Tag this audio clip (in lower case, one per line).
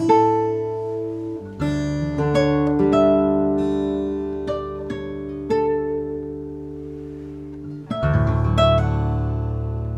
harp
music